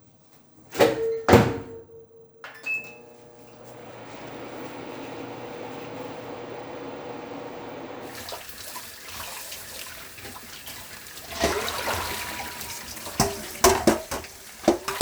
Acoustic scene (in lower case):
kitchen